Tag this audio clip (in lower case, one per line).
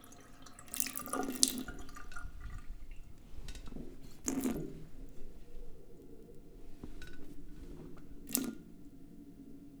liquid
drip
sink (filling or washing)
water tap
domestic sounds